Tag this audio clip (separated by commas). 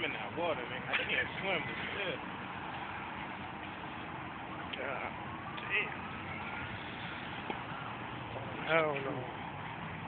Speech